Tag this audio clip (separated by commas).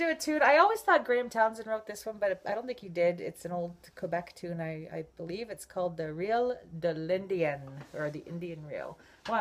Speech